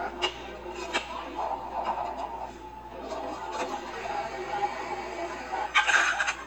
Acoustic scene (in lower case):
cafe